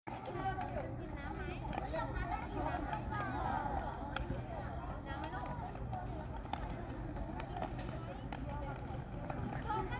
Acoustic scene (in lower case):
park